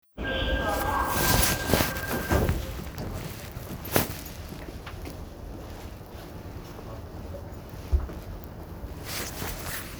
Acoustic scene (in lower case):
subway train